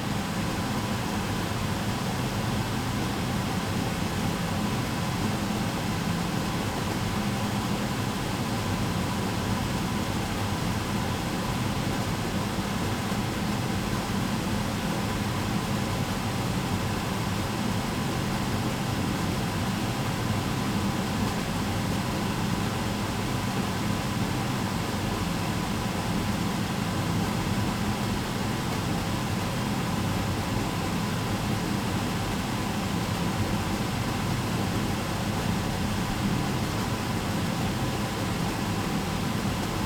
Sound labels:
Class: smoke extractor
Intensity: high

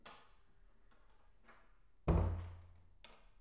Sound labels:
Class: door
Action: closing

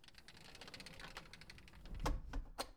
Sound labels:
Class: window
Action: closing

